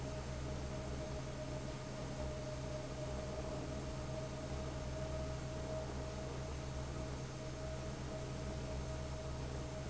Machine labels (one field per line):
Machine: fan